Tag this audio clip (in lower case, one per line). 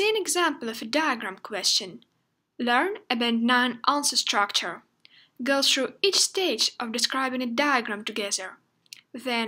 speech